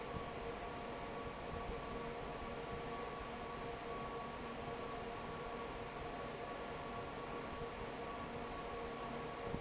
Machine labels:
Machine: fan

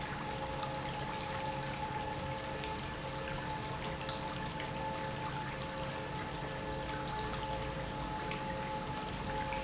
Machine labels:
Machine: pump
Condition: normal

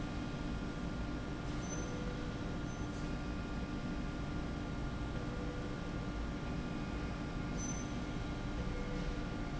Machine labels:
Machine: slide rail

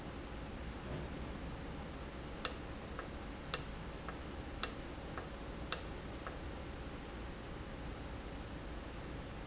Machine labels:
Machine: valve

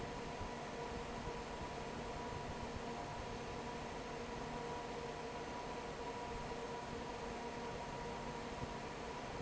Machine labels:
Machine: fan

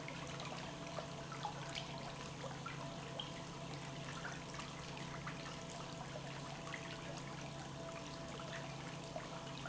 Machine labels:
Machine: pump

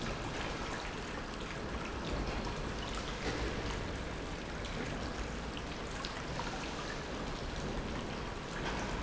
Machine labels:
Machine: pump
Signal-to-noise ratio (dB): -6 dB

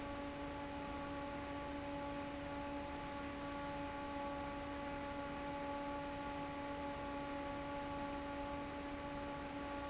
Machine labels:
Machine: fan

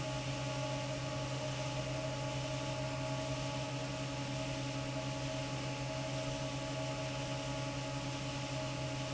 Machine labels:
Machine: fan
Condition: normal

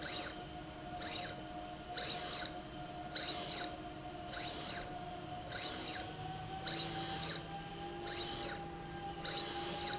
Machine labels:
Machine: slide rail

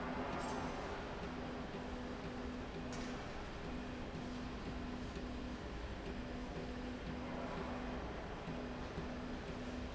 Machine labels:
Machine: slide rail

